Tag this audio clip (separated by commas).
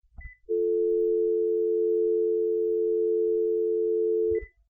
Alarm, Telephone